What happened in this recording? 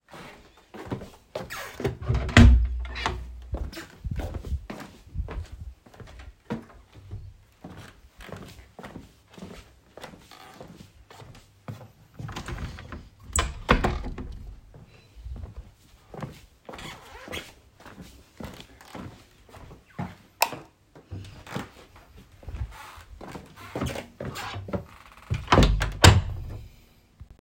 I walked two steps, opened the door to the living room, walked through the living room, opened the window, walked back to the door, turned off the light and closed the door.